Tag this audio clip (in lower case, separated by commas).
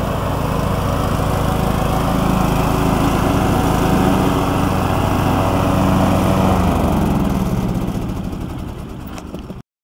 lawn mower, vehicle, lawn mowing